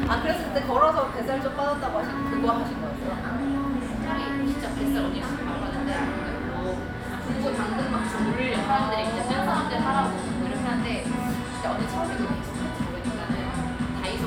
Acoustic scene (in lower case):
cafe